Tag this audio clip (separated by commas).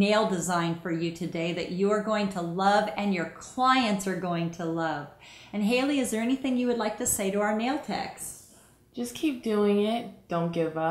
Speech